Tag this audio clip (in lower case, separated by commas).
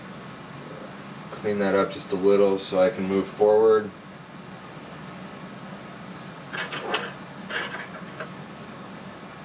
speech